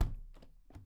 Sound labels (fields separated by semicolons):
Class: window; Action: closing; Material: wooden